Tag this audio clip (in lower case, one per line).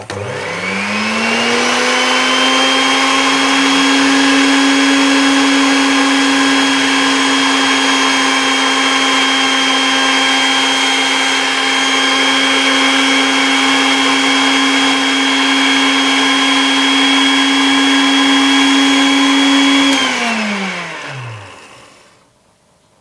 home sounds